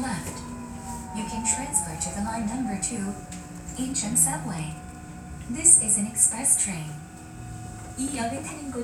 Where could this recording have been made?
on a subway train